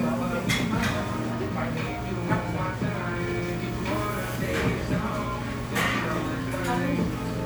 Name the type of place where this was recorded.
restaurant